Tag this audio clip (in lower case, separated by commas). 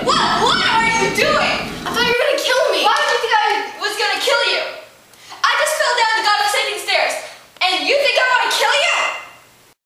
speech